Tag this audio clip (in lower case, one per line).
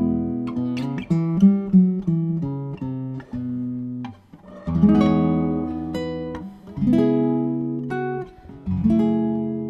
musical instrument
guitar
music
plucked string instrument